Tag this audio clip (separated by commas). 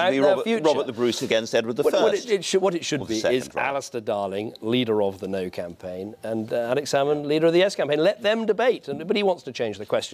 Speech